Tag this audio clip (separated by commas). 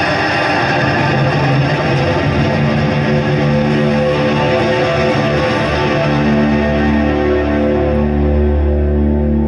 Music